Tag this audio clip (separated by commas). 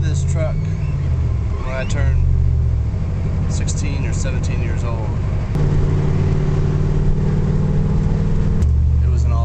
Speech, Truck, Vehicle